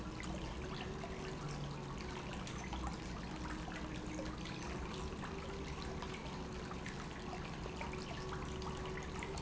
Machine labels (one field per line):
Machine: pump